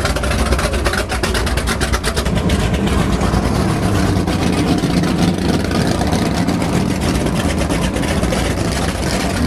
Engine idling and then accelerating